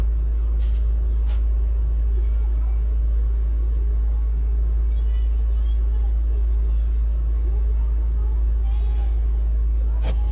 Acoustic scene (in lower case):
car